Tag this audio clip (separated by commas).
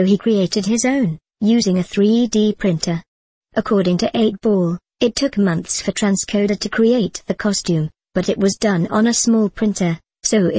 Speech